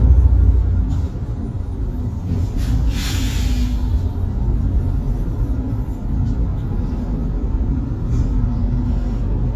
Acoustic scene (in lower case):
bus